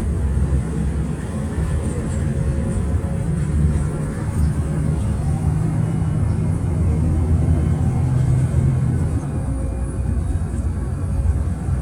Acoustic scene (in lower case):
bus